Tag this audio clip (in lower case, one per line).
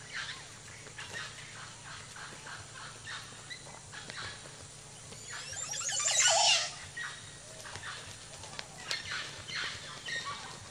turkey gobbling